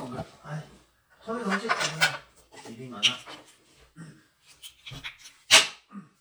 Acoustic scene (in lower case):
restroom